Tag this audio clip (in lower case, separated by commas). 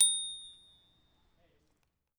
bicycle, alarm, bell, vehicle, bicycle bell